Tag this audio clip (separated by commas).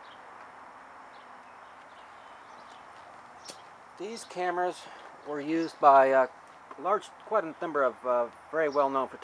Speech